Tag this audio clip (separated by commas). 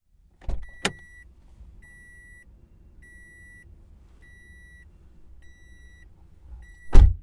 Alarm